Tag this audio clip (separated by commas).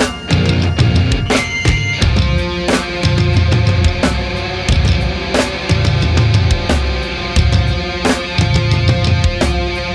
Music